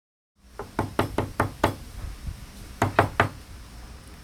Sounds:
home sounds
door
knock

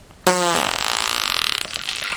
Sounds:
fart

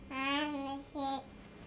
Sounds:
speech
human voice

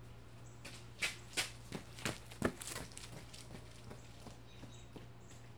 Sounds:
run

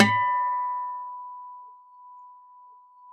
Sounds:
acoustic guitar
guitar
plucked string instrument
musical instrument
music

